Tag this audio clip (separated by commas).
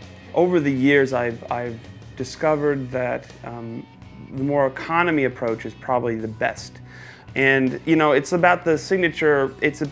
Guitar, Plucked string instrument, Speech, Musical instrument, Electric guitar, Music